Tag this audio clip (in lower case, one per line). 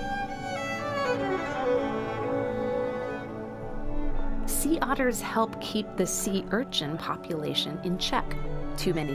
string section